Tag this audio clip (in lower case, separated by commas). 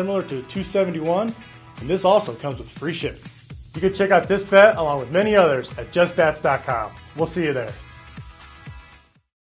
speech, music